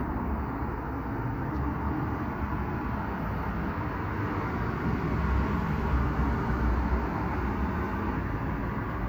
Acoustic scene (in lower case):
street